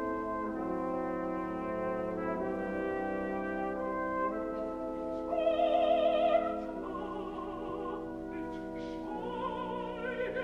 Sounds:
singing, music

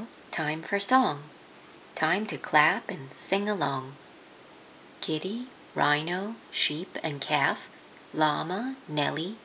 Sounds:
speech

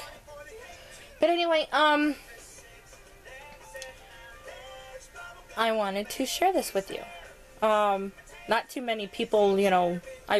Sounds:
music, speech

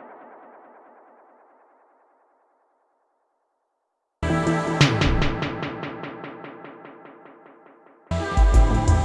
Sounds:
music, echo

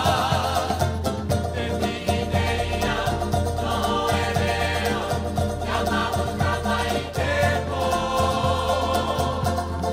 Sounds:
music, salsa music

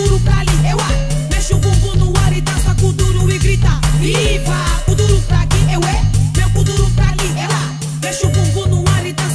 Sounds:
music

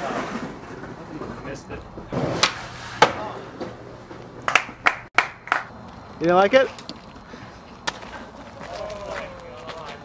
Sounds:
skateboard, speech, skateboarding

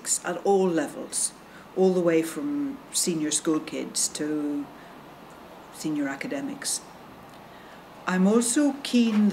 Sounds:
speech

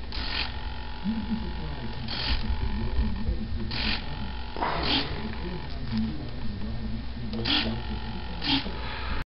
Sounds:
speech

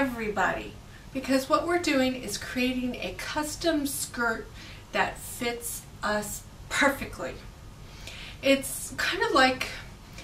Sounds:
speech

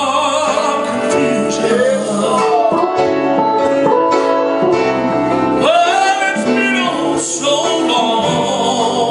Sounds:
music, male singing

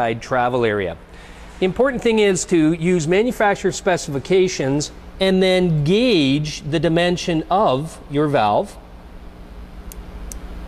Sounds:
speech

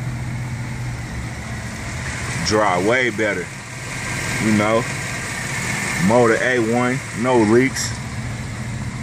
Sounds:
truck, speech, vehicle

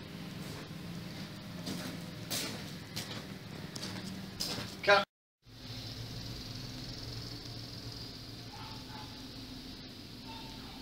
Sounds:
speech

